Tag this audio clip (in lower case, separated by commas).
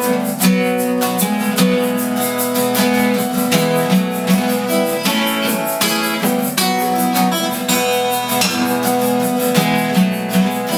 musical instrument, guitar, music